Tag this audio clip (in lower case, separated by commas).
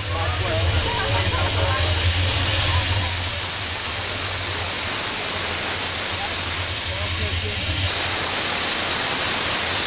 speech, hiss